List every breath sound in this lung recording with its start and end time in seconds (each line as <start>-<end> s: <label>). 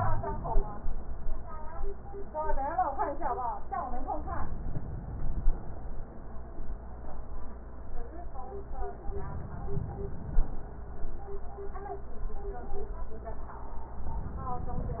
4.17-5.81 s: inhalation
9.04-10.68 s: inhalation